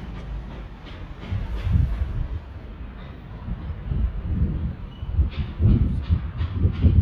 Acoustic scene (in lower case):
residential area